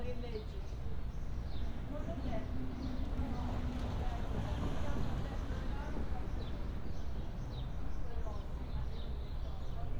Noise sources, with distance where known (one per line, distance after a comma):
person or small group talking, near